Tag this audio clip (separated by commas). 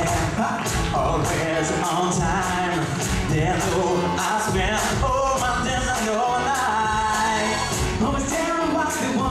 Music